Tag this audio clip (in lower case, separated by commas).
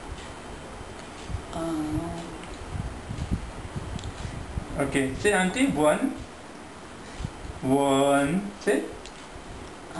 speech, male speech